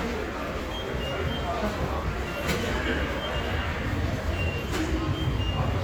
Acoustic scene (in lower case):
subway station